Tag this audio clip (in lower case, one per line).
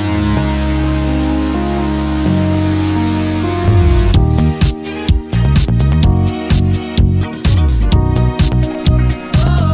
music